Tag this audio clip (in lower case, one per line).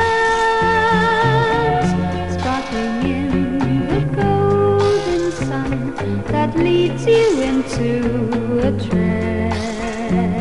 music